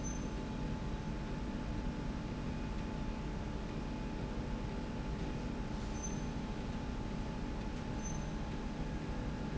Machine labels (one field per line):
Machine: slide rail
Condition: normal